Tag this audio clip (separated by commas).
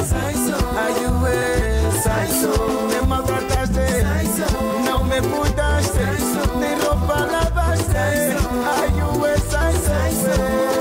Music of Africa, Music